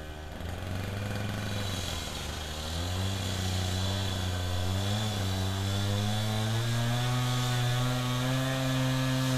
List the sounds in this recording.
unidentified powered saw